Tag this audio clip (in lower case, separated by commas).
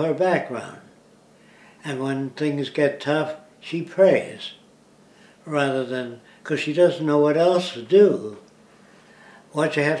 speech, inside a small room